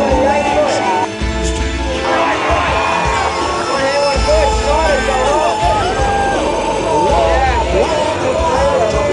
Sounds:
speech, music

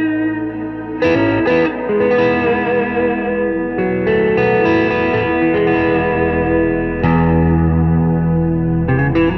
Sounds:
musical instrument, music, plucked string instrument, guitar

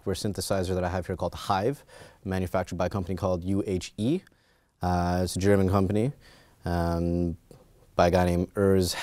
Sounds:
speech

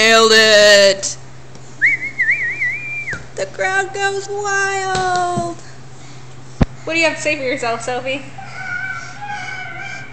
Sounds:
speech, inside a small room

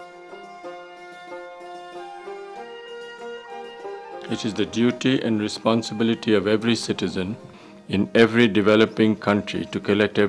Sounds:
speech, music

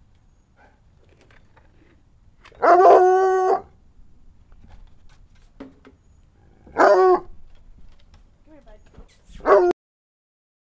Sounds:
dog baying

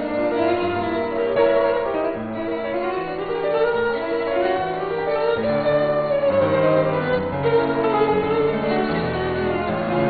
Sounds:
violin, musical instrument, music

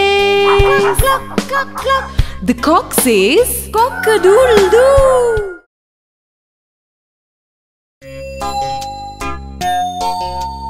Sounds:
music, speech

